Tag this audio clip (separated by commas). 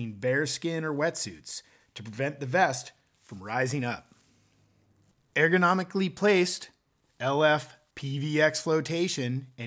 Speech